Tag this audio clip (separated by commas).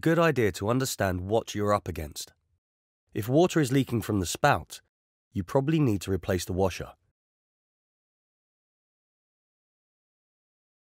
Speech